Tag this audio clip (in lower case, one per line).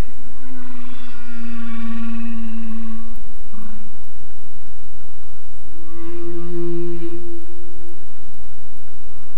whale calling